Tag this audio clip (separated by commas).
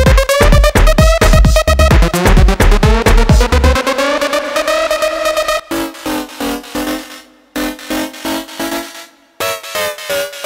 Electronic music, House music, Music, Techno